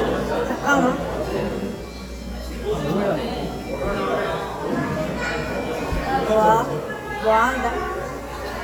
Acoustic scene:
cafe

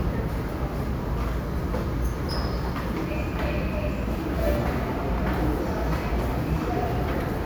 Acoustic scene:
subway station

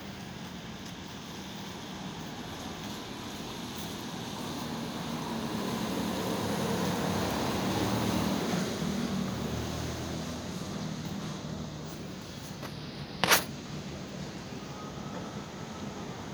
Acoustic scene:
residential area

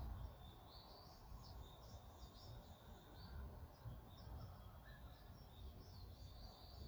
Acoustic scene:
park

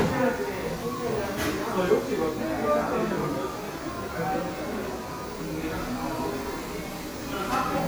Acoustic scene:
crowded indoor space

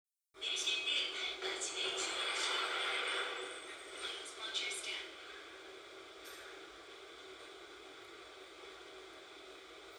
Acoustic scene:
subway train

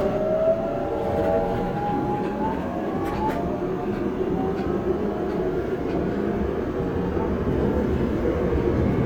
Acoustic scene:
subway train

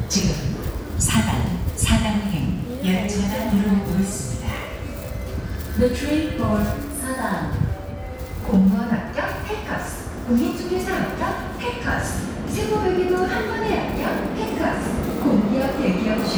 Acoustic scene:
subway station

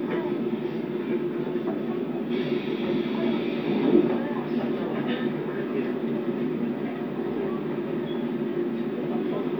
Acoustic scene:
subway train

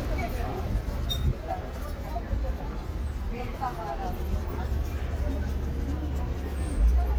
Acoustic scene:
residential area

